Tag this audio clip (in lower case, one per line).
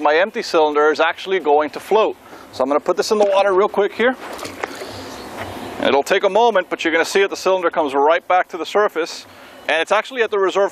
outside, urban or man-made
speech